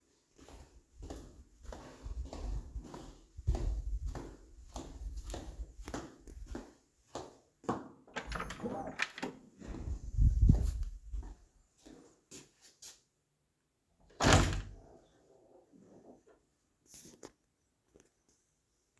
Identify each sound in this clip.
footsteps, door, wardrobe or drawer